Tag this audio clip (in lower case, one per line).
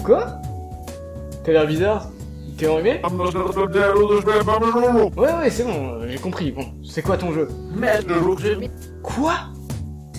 speech
music